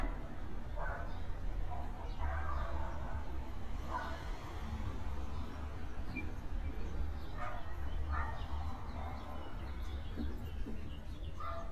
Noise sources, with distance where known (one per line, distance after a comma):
medium-sounding engine
dog barking or whining, far